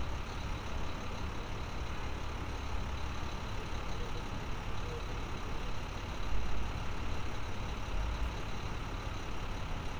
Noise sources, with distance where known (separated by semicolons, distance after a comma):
large-sounding engine, near